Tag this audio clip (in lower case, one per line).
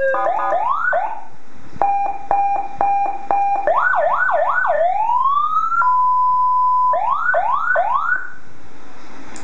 police car (siren)